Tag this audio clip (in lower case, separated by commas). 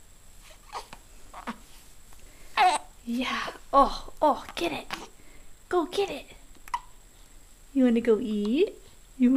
speech